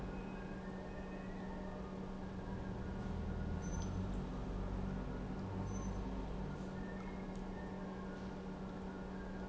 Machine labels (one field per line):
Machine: pump